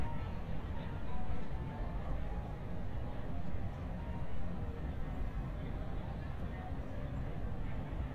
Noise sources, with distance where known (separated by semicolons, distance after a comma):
music from an unclear source, far; person or small group talking, far